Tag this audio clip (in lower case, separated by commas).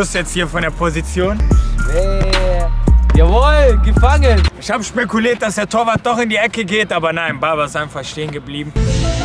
shot football